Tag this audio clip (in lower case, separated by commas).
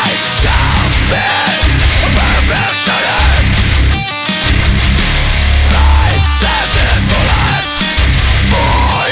music, soundtrack music